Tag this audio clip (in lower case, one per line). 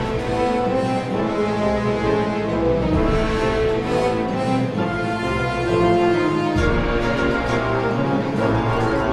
music